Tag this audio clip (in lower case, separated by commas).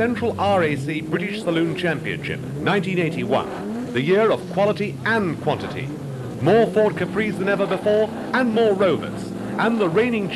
speech, car, vehicle